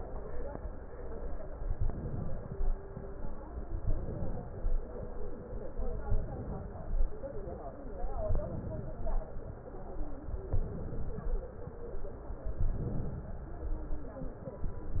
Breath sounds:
Inhalation: 1.56-2.54 s, 3.68-4.46 s, 6.13-6.94 s, 8.17-8.99 s, 10.29-11.30 s, 12.61-13.47 s

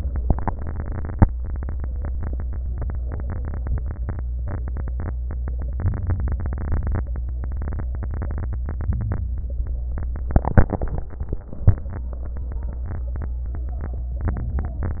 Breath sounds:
Inhalation: 5.75-7.04 s, 8.64-9.30 s, 14.35-15.00 s
Exhalation: 7.04-7.99 s, 9.37-10.03 s

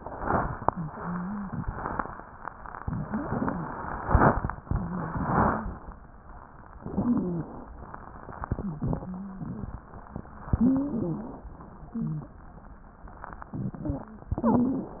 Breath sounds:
Inhalation: 6.74-7.72 s, 10.46-11.44 s, 14.34-15.00 s
Exhalation: 8.48-9.86 s, 11.58-12.36 s
Wheeze: 8.48-9.86 s, 11.88-12.36 s
Stridor: 6.74-7.72 s, 10.46-11.44 s, 14.34-15.00 s

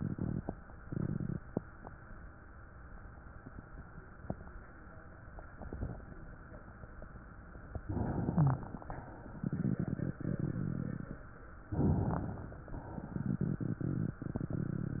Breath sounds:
Inhalation: 7.86-8.77 s, 11.75-12.66 s
Wheeze: 8.36-8.59 s
Rhonchi: 9.37-11.28 s

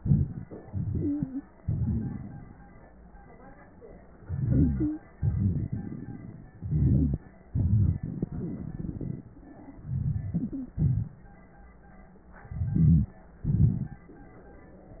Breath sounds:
Inhalation: 0.62-1.45 s, 4.17-5.05 s, 6.53-7.20 s, 9.79-10.76 s, 12.44-13.18 s
Exhalation: 1.57-2.62 s, 5.16-6.54 s, 7.50-9.42 s, 10.75-11.24 s, 13.43-14.08 s
Wheeze: 4.27-4.88 s, 6.64-7.20 s, 7.50-8.03 s, 12.61-13.15 s
Stridor: 0.95-1.39 s, 4.75-5.00 s, 10.34-10.75 s
Crackles: 1.57-2.62 s, 5.16-6.54 s, 13.43-14.08 s

